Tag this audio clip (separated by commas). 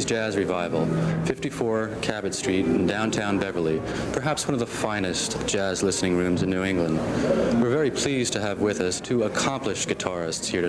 Speech